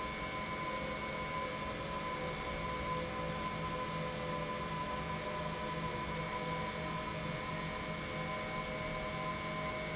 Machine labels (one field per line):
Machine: pump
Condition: normal